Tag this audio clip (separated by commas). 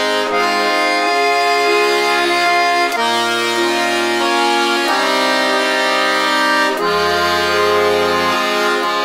Accordion, Musical instrument